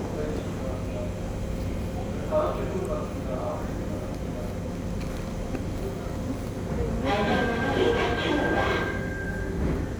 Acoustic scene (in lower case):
subway station